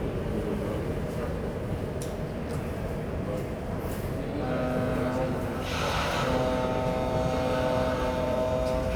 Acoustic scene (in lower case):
subway station